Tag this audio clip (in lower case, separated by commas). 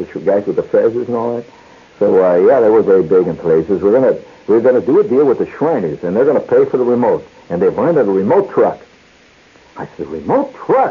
speech